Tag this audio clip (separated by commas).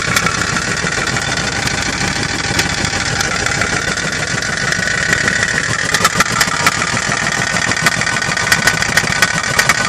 car engine knocking